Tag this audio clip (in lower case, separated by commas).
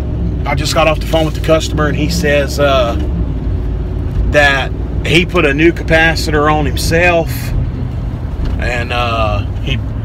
speech